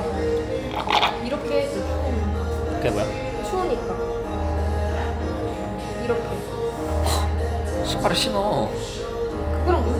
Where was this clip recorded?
in a cafe